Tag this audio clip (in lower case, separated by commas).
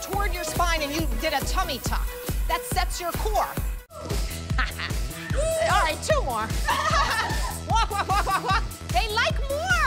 music, speech